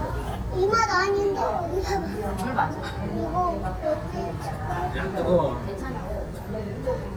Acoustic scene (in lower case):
restaurant